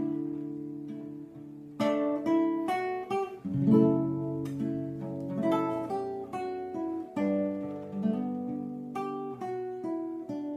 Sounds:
Music, Guitar, Musical instrument, Strum, Plucked string instrument

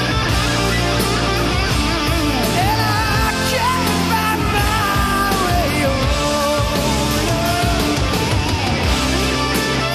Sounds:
Punk rock, Music, Rock music

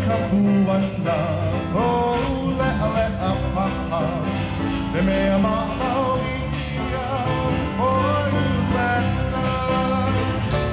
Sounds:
Bluegrass, Country

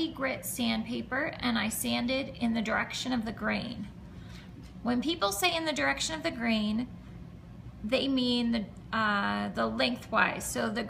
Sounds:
Speech

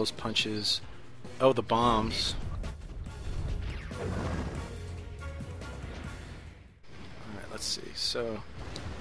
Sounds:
Music, Speech

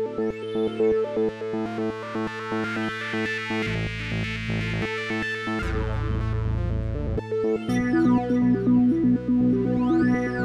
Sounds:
Music

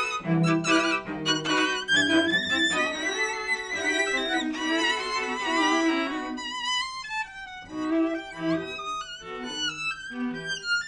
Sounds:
Music, Orchestra

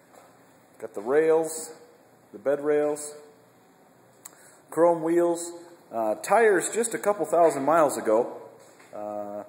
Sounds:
Speech

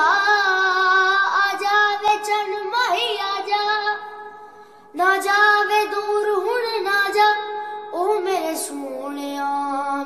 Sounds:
child singing

